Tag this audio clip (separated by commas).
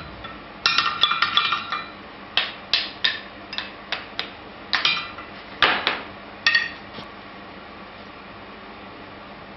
forging swords